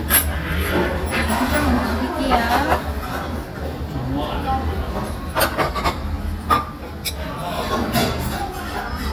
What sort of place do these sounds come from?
restaurant